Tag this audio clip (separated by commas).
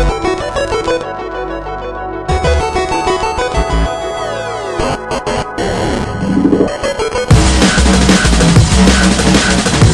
Music, Zing